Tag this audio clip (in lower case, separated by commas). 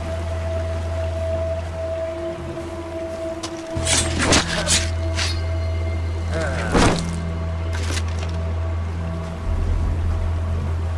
music, outside, rural or natural